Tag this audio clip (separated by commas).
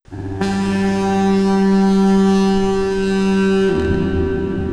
Alarm